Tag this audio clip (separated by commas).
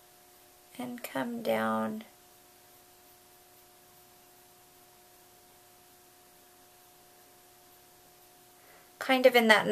Speech